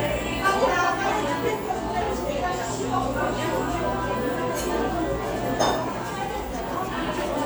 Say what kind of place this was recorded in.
cafe